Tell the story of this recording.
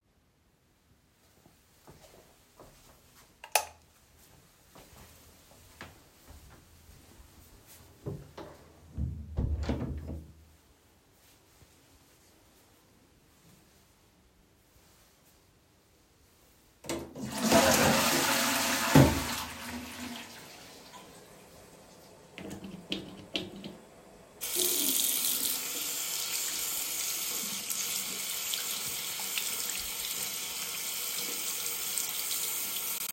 I walked to the light switch and turned it on. Then I went into the toilet and closed the door. I flushed the toilet. After that, I used the soap dispenser. Then I turned on the water and washed my hands.